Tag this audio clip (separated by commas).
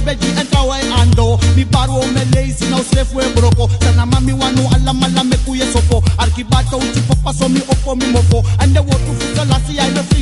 Reggae, Music, Music of Africa